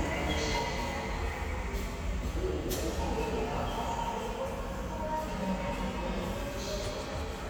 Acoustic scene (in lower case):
subway station